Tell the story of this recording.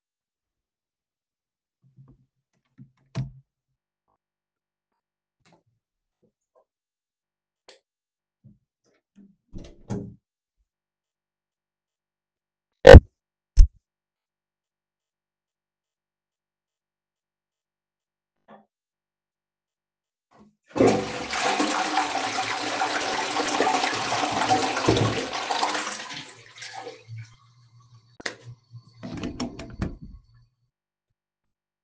I opened the bathroom door and entered while flicking the light switch on. I flushed the toilet and then switched the light off before opening the door and leaving the room.